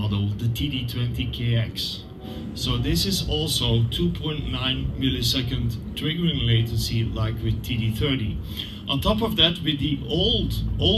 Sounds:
Speech

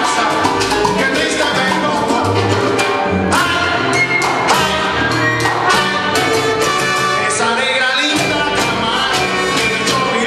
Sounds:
Dance music, Music

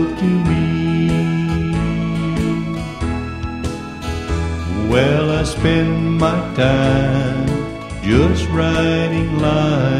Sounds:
Music, Singing

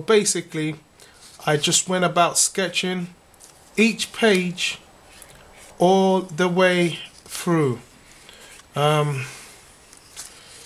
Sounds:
Speech

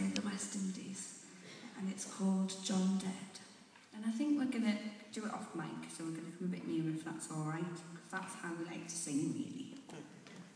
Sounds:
Speech

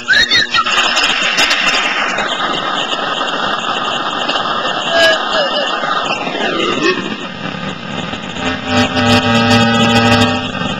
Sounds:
Hum

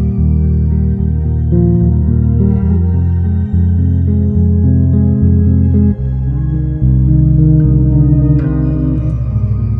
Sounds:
Music, Ambient music

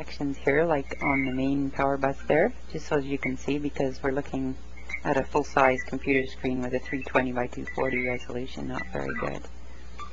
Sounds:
Speech

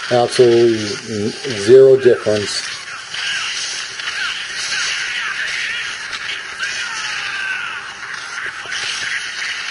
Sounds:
Speech

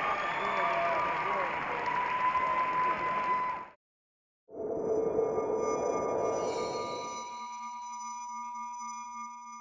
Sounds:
Speech, Music, inside a large room or hall

